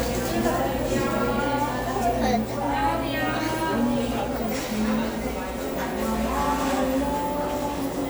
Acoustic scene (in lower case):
cafe